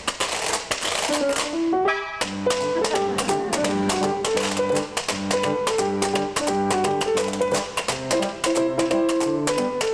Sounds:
playing washboard

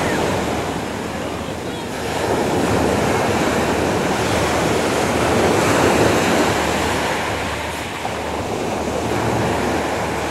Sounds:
speech

